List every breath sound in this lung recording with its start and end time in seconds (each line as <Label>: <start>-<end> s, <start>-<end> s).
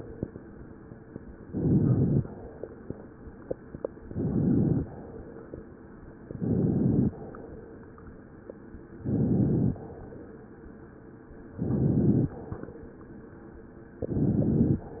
Inhalation: 1.39-2.26 s, 4.04-4.92 s, 6.36-7.14 s, 9.05-9.85 s, 11.59-12.39 s, 14.12-15.00 s